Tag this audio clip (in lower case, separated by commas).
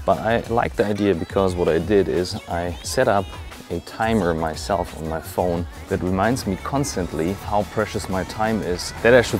speech, music